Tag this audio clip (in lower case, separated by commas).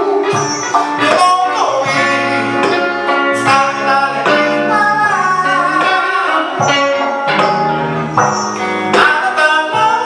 blues, music